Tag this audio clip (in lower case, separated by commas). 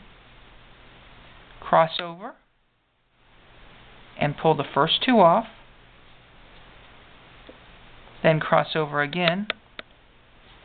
speech, inside a small room